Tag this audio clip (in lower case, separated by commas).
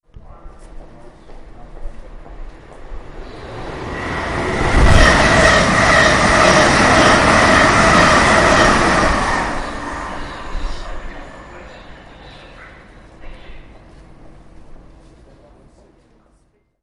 train, rail transport, vehicle